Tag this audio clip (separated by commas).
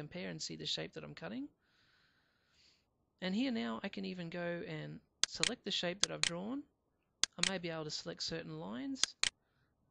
Speech